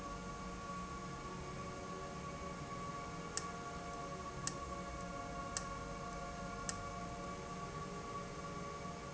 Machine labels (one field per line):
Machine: valve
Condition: abnormal